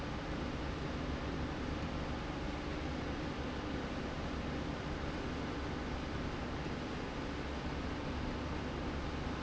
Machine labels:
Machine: slide rail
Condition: normal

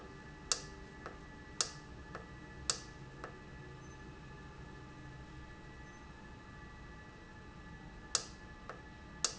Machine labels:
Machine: valve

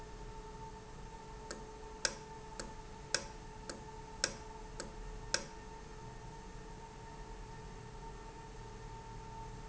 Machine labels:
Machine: valve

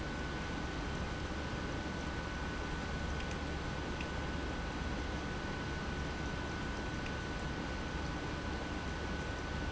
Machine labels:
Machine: pump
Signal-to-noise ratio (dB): -6 dB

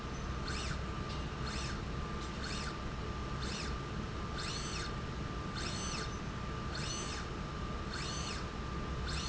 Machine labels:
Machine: slide rail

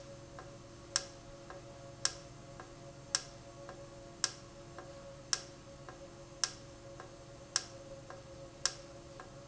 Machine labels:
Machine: valve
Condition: normal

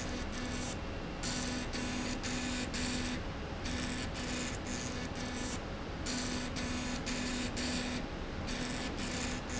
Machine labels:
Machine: slide rail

